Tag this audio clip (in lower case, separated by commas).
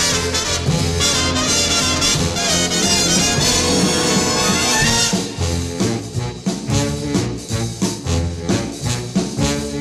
music